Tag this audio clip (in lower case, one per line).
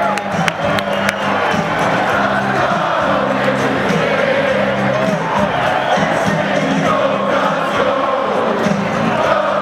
music